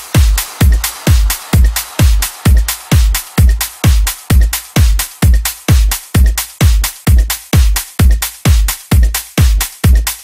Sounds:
Disco, Music

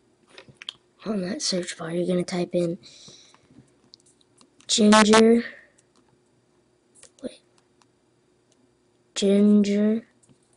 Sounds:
Silence, inside a small room, Speech

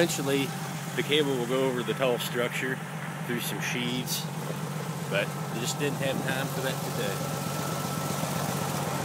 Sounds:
Speech, Vehicle

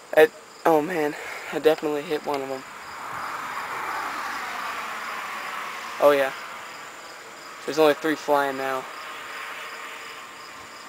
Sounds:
Speech

